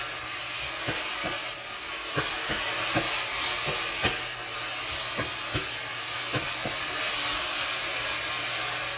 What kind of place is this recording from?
kitchen